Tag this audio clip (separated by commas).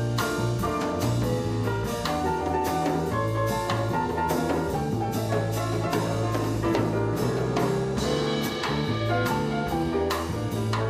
Piano, Keyboard (musical)